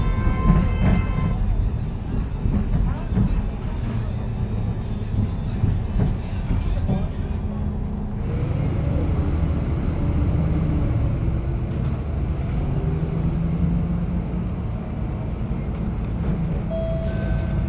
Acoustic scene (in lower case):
bus